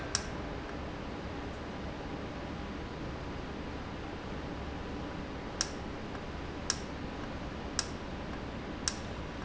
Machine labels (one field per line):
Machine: valve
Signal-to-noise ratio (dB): -6 dB